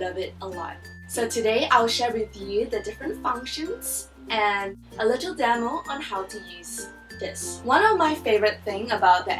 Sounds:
music, speech

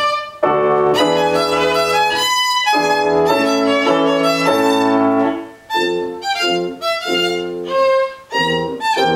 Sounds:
musical instrument, music, violin

